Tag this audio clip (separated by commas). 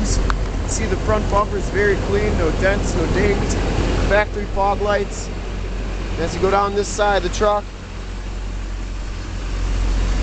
Vehicle, Truck, Speech